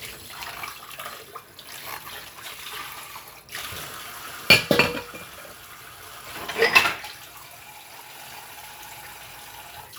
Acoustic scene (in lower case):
kitchen